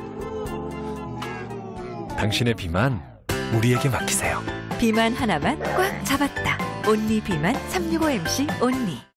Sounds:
music, speech

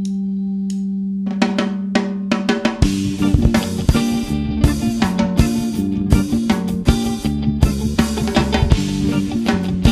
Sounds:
punk rock, music

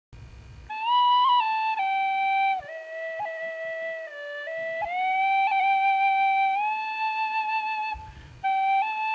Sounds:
music, woodwind instrument, flute, musical instrument

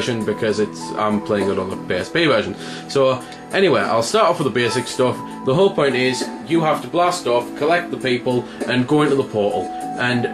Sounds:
speech, music

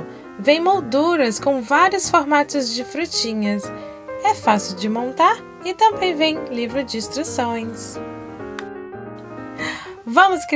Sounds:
music, speech

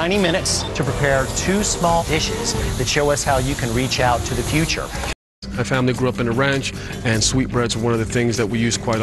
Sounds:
music, speech

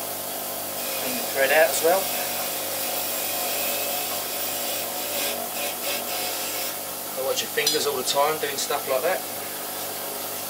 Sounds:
tools, power tool

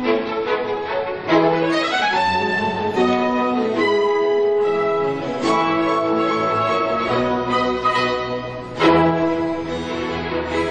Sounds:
classical music, bowed string instrument, violin, orchestra, music

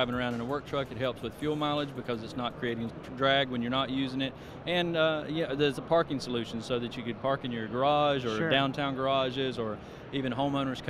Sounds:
speech

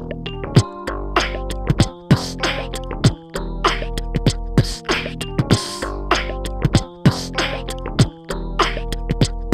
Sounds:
music

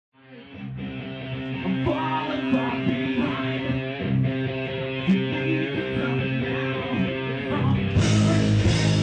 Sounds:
music, electric guitar

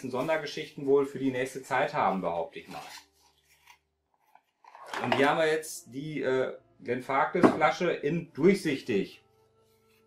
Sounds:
speech

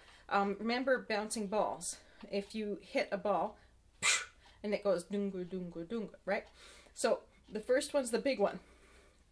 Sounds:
speech

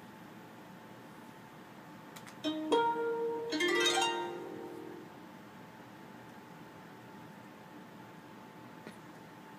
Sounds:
music

